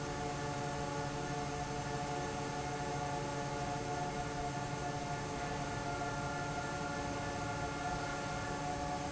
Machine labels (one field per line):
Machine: fan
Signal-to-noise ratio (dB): -6 dB